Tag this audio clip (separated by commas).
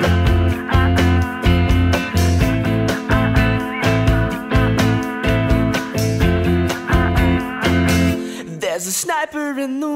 Music